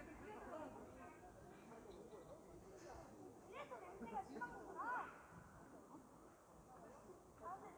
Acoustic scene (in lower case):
park